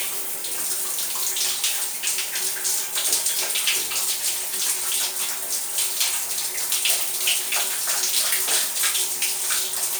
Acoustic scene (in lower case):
restroom